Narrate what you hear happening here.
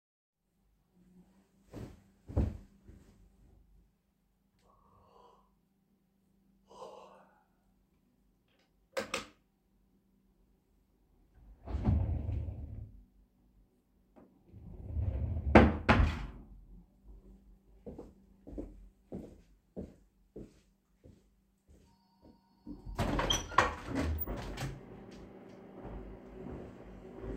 I get out of bed, yawn, turn on the light, I open and close a drawer, walk to the window and I open the window while a phone rings, there is also traffic noise after I open the window